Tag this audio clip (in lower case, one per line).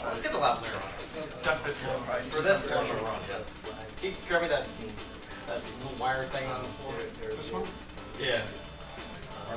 music
speech